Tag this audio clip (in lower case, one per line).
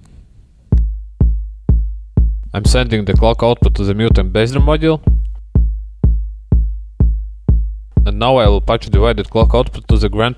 speech